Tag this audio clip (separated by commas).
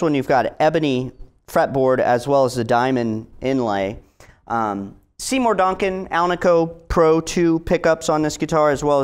Speech